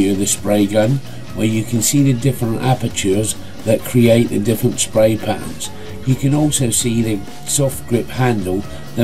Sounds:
Speech, Music

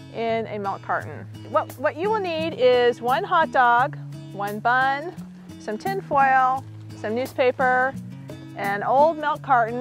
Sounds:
Music, Speech

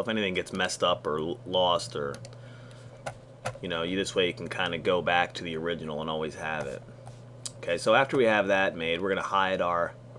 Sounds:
Speech

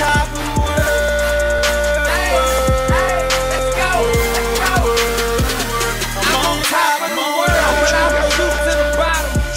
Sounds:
Pop music, Music

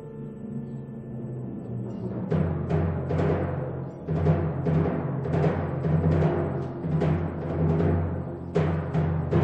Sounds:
Music

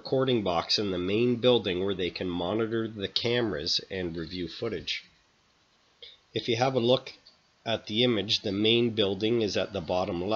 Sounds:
Speech

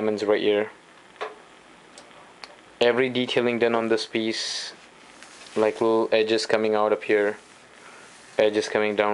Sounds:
Speech

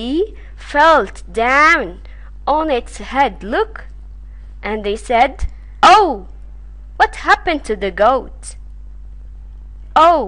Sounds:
Speech

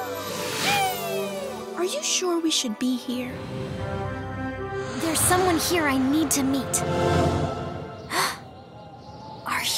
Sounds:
Music, Speech

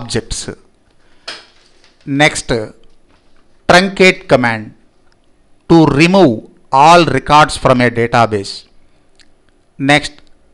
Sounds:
Speech

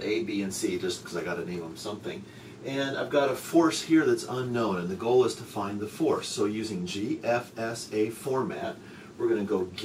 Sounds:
Speech

